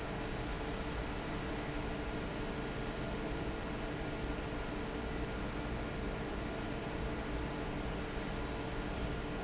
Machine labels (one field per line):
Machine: fan